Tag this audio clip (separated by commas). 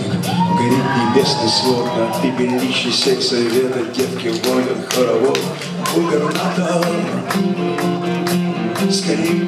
Music